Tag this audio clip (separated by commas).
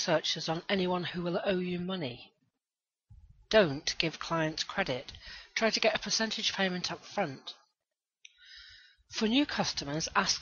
Narration